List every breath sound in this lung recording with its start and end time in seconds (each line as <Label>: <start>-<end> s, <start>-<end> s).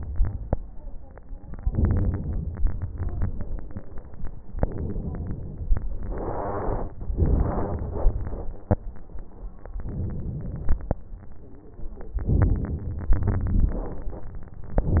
Inhalation: 1.61-3.00 s, 4.58-5.79 s, 7.12-8.17 s, 9.79-10.96 s, 12.22-13.15 s
Exhalation: 8.21-8.80 s, 13.17-14.10 s
Crackles: 1.61-3.00 s, 7.12-8.17 s, 8.21-8.80 s, 12.22-13.15 s, 13.17-14.10 s